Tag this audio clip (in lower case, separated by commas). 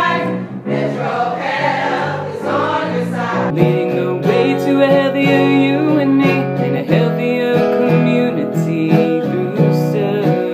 exciting music, music